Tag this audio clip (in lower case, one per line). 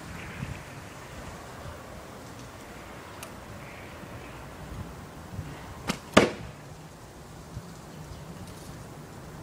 arrow